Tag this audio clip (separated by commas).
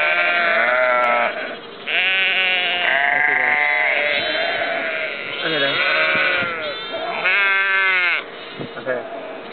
Bleat, Speech, sheep bleating, Sheep